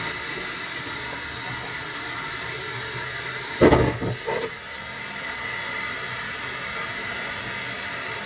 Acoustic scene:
kitchen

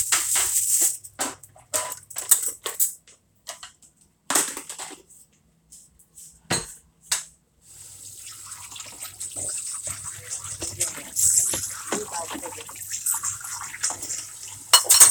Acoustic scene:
kitchen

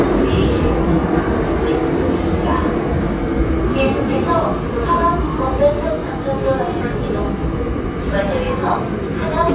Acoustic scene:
subway train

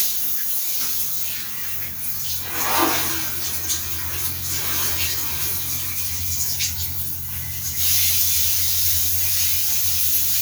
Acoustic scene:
restroom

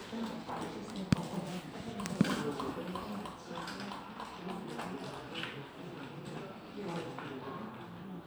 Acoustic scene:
crowded indoor space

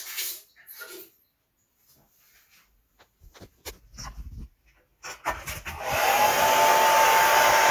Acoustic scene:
restroom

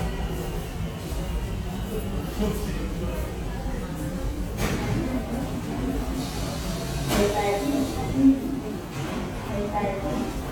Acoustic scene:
subway station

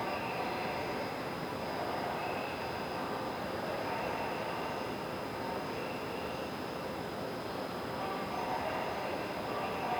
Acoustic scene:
subway station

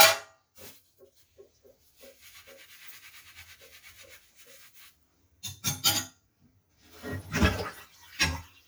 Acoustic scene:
kitchen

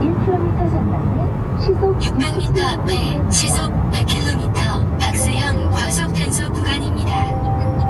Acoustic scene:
car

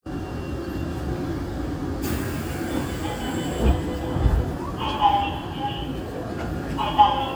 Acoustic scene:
subway train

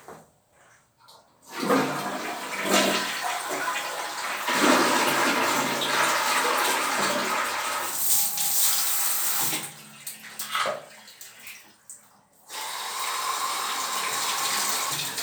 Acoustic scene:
restroom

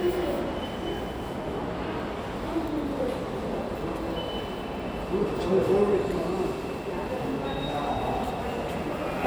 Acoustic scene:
subway station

